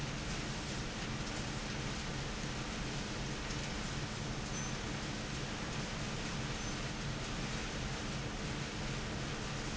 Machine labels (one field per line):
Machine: fan